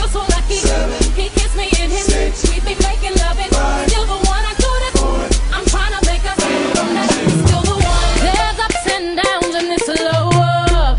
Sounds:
singing
hip hop music
music

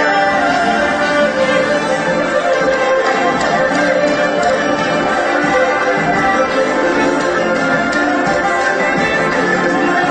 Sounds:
music

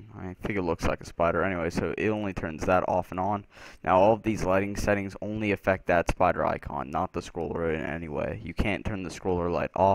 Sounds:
speech

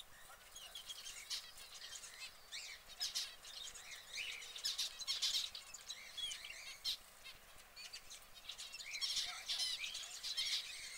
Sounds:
canary calling

